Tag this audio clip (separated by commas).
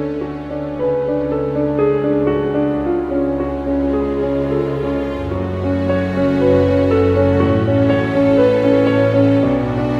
Music